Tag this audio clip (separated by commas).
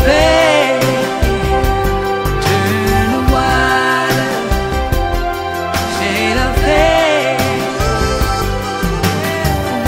Music